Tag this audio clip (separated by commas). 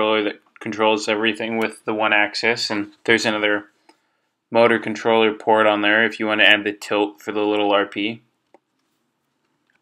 Speech